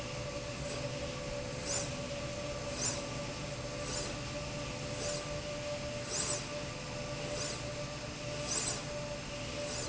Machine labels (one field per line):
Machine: slide rail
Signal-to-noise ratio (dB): -6 dB